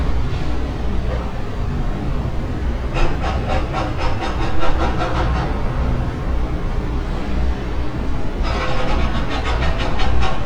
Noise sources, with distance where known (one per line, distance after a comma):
unidentified impact machinery, near